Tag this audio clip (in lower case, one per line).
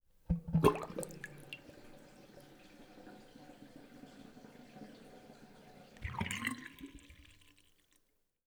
bathtub (filling or washing)
sink (filling or washing)
domestic sounds